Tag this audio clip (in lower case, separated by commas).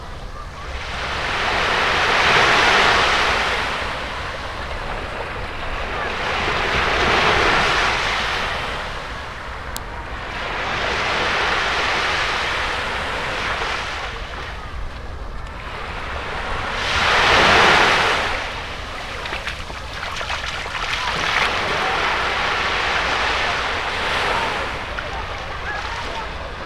ocean, water